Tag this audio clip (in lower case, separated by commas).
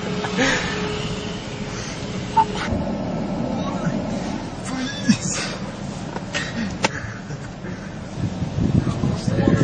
gurgling, speech